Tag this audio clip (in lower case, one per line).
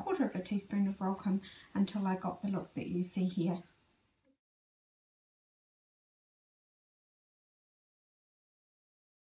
speech